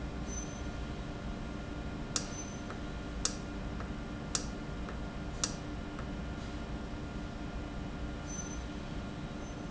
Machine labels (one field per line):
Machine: valve